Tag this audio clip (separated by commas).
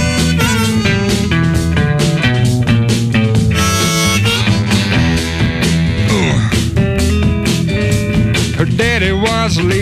Music, Rock music